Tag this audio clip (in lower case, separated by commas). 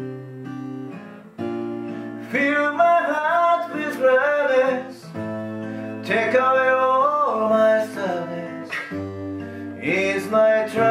musical instrument, guitar, music, plucked string instrument